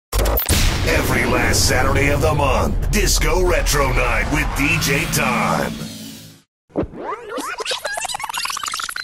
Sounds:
speech
music

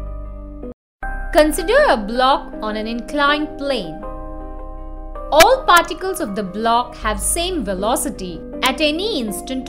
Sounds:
techno
speech
music

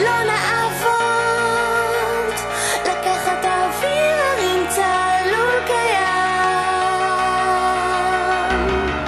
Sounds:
music

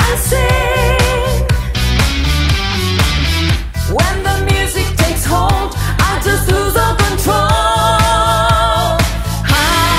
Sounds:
pop music
music
singing
inside a public space

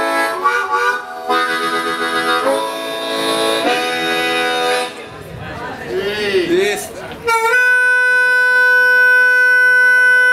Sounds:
music
speech

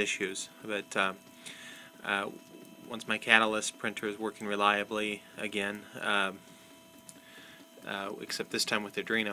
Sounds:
speech
printer

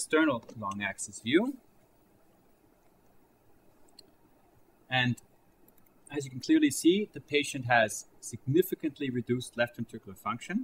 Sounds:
speech

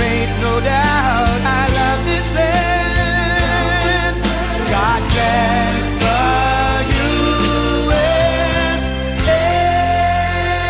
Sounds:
music

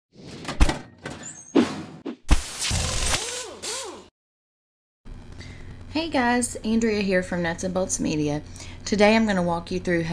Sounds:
speech
music

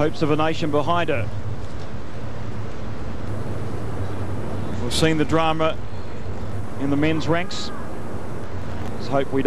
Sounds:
speech
inside a public space

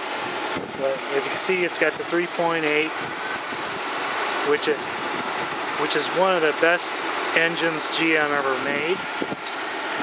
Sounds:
outside, rural or natural
speech
car
vehicle

